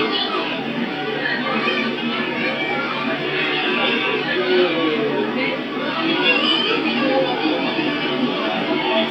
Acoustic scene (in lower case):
park